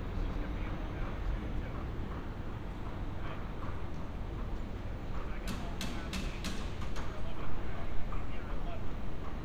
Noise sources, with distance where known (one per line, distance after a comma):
person or small group talking, near